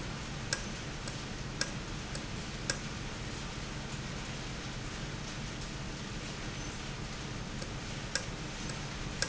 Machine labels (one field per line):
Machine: valve